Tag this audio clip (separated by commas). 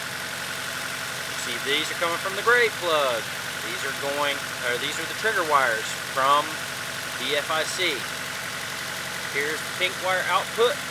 Speech